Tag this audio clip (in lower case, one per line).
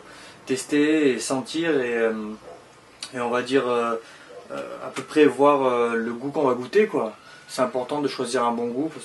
speech